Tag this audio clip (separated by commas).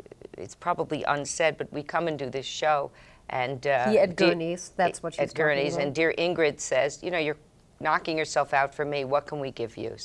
Speech, woman speaking